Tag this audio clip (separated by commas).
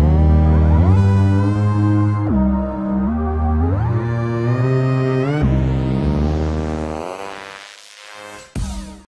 Music, Dubstep